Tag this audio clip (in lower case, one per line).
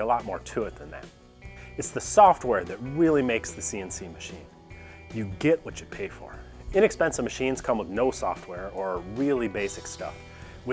speech
music